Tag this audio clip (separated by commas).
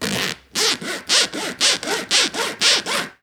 Tools, Sawing, home sounds, Zipper (clothing)